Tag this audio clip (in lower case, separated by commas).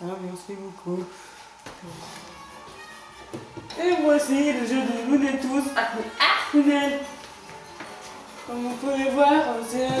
music, speech